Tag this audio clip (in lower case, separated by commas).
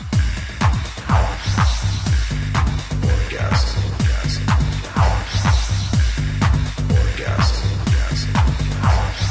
throbbing, music